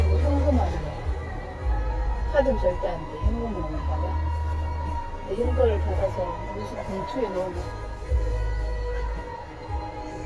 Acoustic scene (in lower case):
car